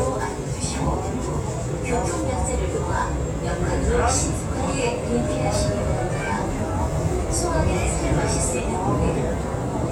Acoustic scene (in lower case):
subway train